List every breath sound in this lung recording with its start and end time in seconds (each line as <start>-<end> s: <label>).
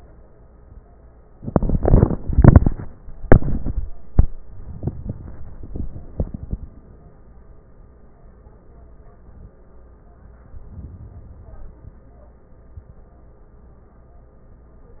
10.47-11.49 s: inhalation
11.50-12.62 s: exhalation